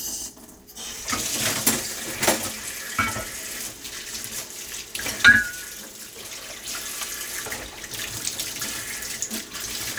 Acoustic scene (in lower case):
kitchen